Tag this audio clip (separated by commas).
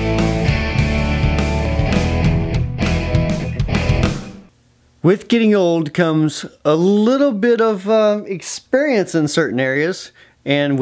Music, Speech